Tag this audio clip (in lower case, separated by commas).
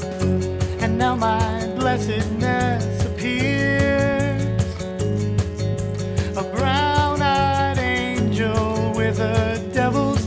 music, background music